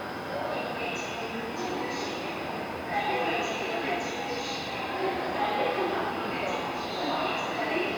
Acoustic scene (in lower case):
subway station